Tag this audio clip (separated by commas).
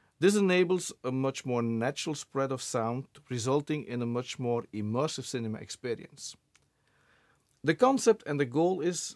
Speech